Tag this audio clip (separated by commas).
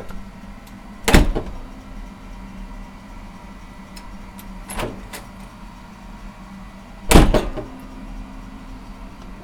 Slam, Domestic sounds, Door